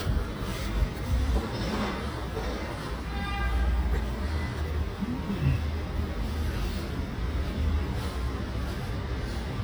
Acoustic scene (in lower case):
residential area